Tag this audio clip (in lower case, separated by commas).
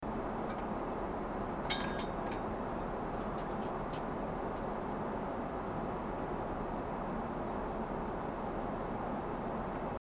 glass, shatter